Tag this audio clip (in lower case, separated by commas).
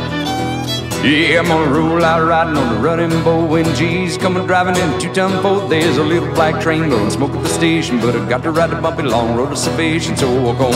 music